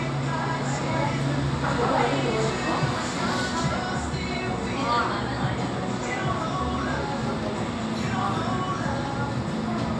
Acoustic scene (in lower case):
cafe